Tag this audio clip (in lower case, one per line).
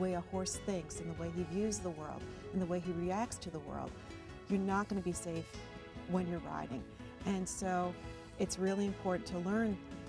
music
speech